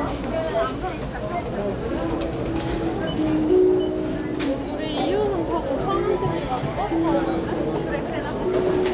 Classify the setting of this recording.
crowded indoor space